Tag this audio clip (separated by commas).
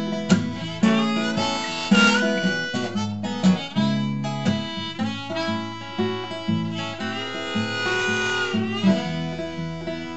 Blues, Music, Jazz